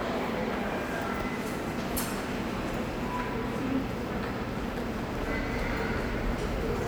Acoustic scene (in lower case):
subway station